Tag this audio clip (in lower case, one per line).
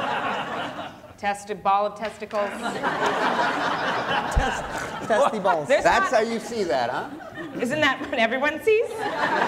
speech